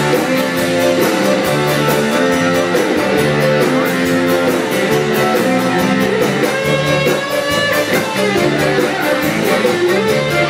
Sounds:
country, music, music of latin america

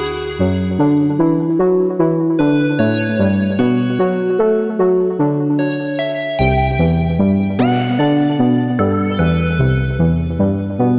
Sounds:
musical instrument, synthesizer, music

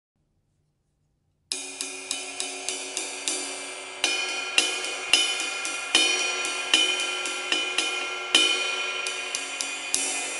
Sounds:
cymbal, playing cymbal, hi-hat

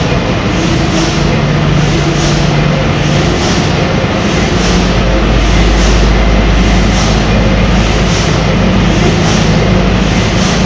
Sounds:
engine, heavy engine (low frequency)

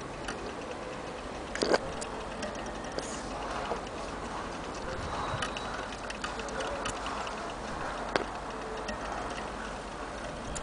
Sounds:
tick, tick-tock

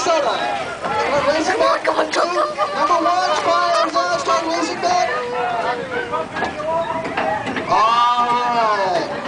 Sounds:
speech

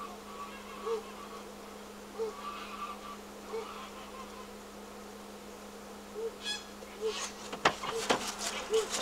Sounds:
goose, honk, fowl

